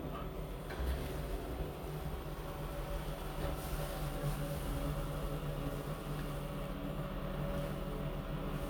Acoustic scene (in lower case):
elevator